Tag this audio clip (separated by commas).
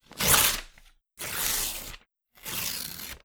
Tearing